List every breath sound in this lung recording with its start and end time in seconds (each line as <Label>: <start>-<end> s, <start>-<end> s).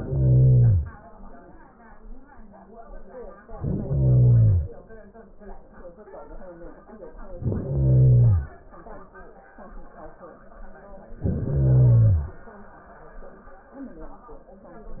Inhalation: 0.00-1.04 s, 3.43-4.83 s, 7.27-8.61 s, 11.13-12.48 s